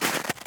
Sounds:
Walk

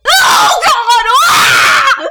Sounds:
Screaming, Human voice

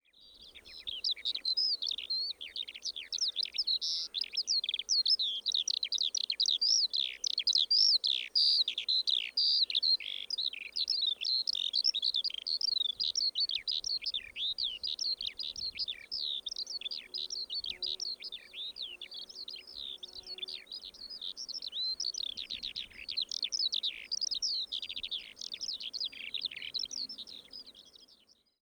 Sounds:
bird call, Animal, Wild animals, Bird

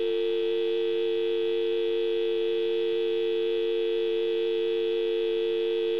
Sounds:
Alarm, Telephone

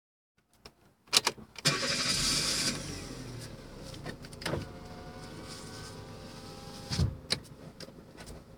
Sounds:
Car, Vehicle, Motor vehicle (road), Engine

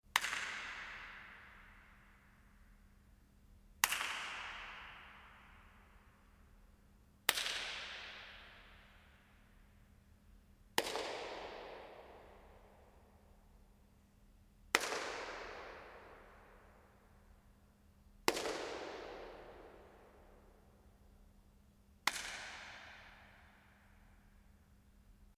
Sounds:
Clapping, Hands

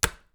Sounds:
Wood

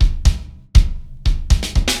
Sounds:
Drum kit, Musical instrument, Percussion, Music

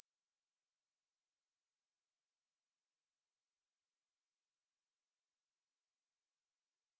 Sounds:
Camera, Mechanisms

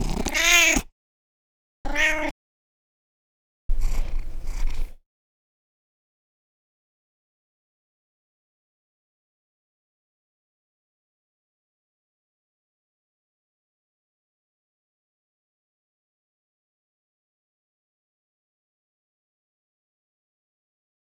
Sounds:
Animal, Domestic animals, Cat

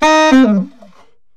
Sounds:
woodwind instrument, Musical instrument, Music

